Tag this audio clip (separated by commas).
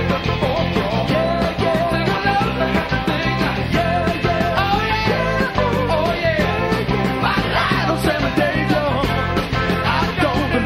Soul music, Music